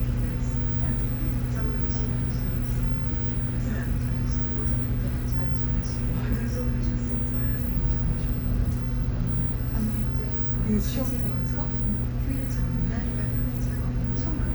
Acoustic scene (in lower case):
bus